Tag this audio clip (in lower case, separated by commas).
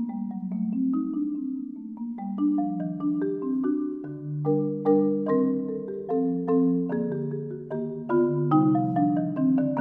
glockenspiel, xylophone, percussion, mallet percussion